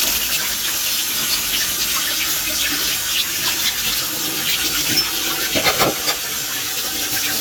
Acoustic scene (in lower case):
kitchen